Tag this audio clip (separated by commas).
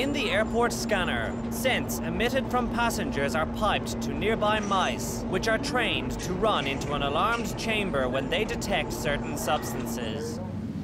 Speech